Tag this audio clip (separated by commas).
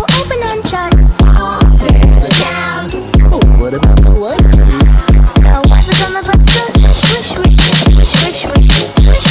Electronic music, Music, Dubstep